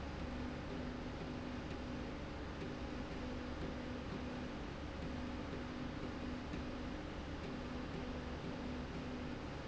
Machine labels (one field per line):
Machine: slide rail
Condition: normal